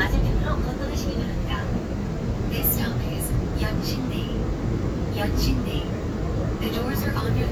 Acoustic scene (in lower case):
subway train